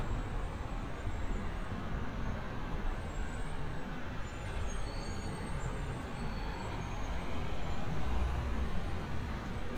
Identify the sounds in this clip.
engine of unclear size